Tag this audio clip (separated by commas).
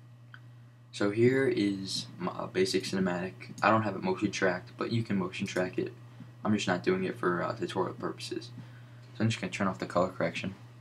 Speech